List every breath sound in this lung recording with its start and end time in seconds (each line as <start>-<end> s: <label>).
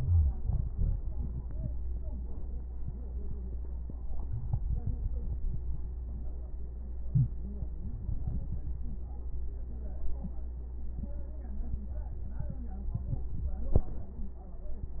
7.03-7.43 s: inhalation